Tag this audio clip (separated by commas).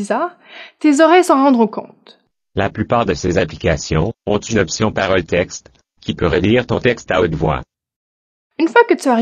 Speech synthesizer, Speech